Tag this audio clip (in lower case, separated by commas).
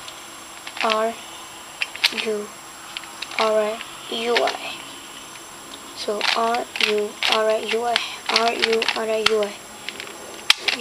inside a small room, speech